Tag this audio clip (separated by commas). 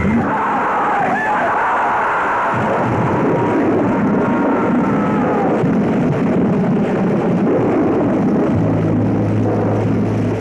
Speech, Music